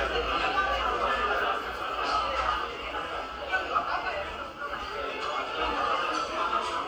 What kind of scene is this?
cafe